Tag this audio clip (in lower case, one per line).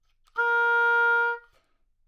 wind instrument
music
musical instrument